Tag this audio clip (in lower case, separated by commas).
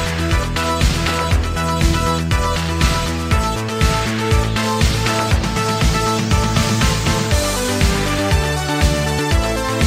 music